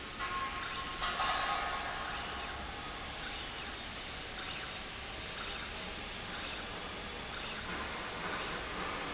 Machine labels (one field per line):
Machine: slide rail